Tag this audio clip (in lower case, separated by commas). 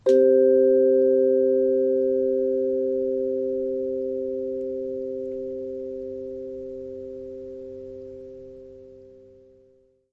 percussion, musical instrument, music, mallet percussion